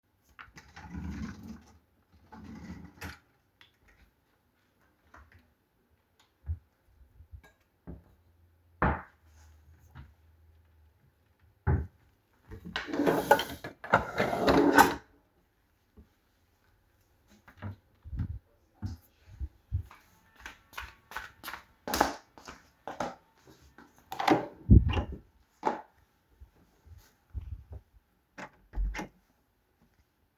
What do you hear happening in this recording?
I was looking through the kitchen drawers and cabinets for dishes and food. Then I walked and went to my room.